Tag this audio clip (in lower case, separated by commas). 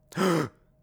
respiratory sounds, gasp, breathing